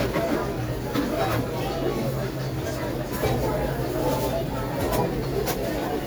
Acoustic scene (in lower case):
crowded indoor space